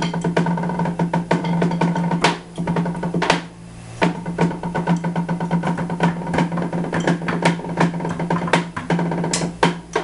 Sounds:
percussion, drum, drum roll

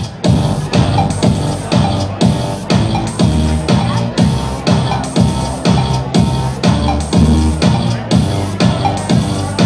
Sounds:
disco, music, speech

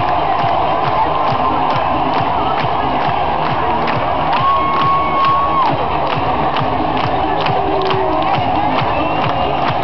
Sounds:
speech, music

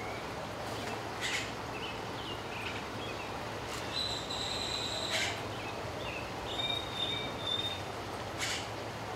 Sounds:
outside, rural or natural, animal

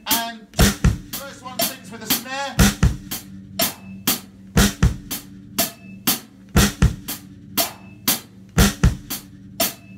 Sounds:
playing bass drum

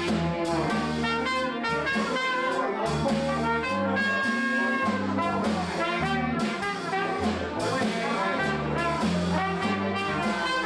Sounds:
music, blues, speech

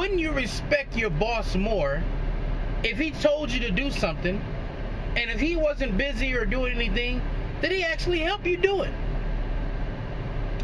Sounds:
vehicle, speech

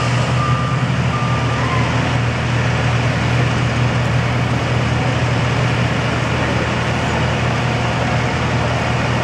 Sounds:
vehicle

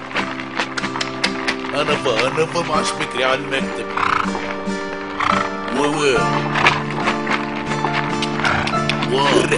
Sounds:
speech, music

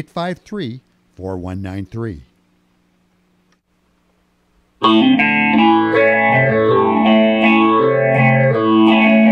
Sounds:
plucked string instrument, musical instrument, guitar, music

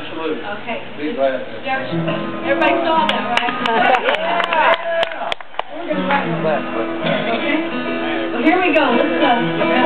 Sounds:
music, speech

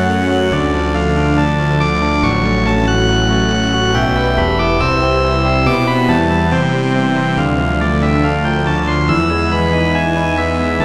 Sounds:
music

